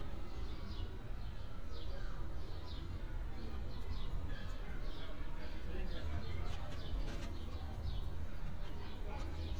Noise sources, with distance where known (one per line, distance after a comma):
background noise